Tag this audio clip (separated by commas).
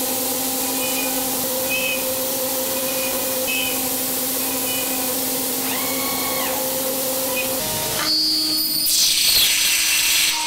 Engine